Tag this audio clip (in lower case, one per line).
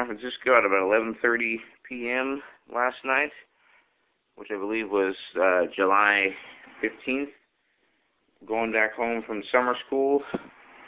speech